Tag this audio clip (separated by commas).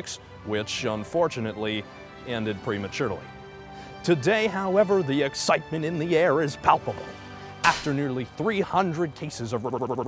smack, Music, Speech